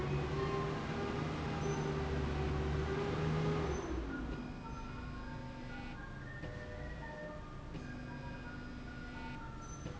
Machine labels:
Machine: slide rail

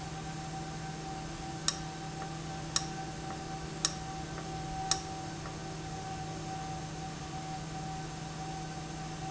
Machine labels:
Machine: valve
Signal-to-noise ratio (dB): -6 dB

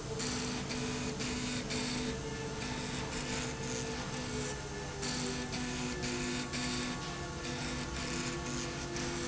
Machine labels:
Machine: slide rail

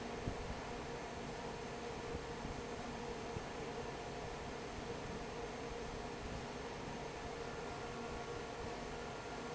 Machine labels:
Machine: fan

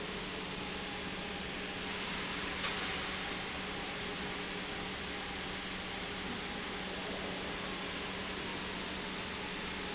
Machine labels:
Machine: pump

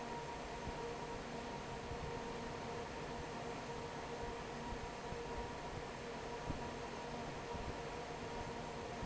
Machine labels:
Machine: fan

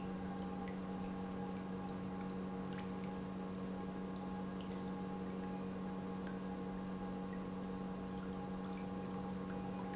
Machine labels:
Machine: pump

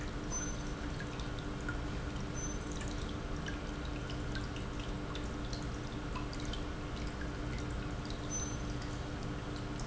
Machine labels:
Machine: pump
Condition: normal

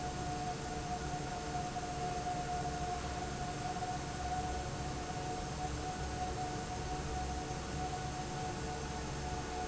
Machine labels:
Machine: fan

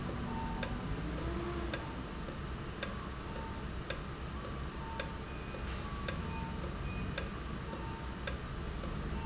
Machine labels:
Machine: valve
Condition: normal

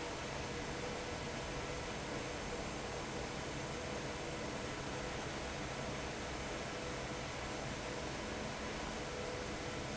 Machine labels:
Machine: fan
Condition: abnormal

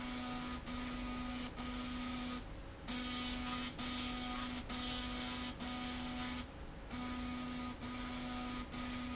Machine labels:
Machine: slide rail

